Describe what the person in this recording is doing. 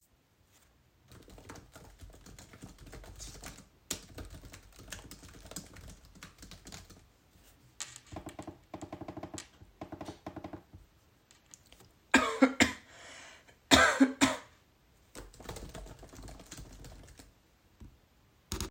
I was typing an essay on my laptop and highlighting text using the mouse. While working, I coughed briefly and then continued typing.